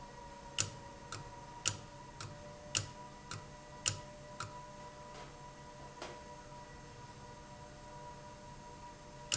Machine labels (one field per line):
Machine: valve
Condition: abnormal